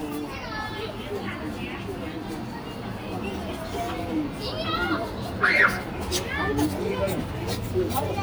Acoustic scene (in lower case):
park